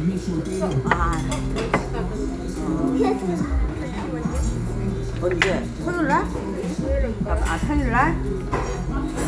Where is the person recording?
in a restaurant